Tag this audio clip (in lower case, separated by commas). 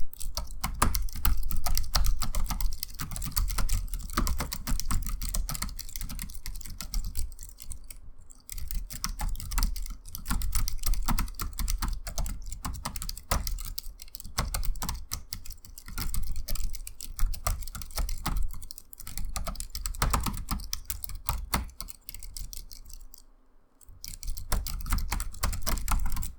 domestic sounds, typing